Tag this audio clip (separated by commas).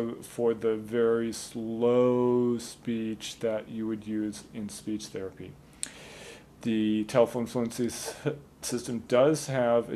Speech